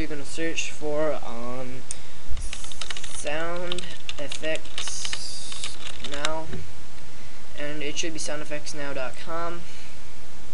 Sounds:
speech

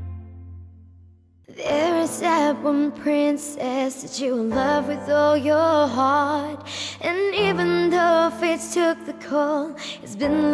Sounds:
music

